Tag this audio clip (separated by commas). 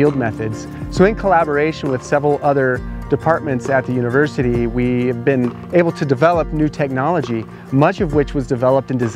Music, Speech